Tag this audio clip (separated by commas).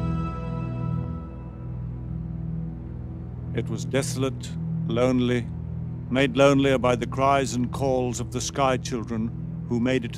Music, Speech